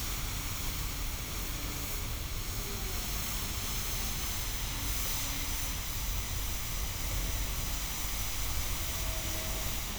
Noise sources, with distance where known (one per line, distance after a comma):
small or medium rotating saw, near